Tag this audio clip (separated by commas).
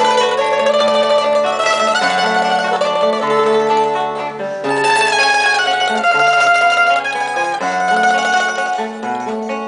Music